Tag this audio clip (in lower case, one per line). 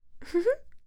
human voice
laughter
chuckle